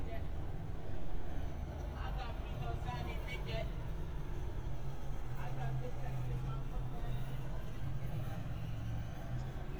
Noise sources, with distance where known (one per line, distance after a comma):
person or small group talking